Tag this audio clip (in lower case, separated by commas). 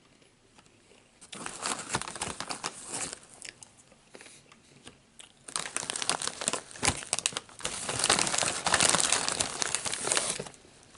people eating crisps